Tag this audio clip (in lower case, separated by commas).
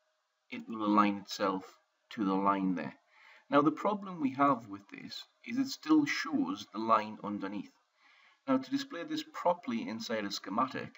speech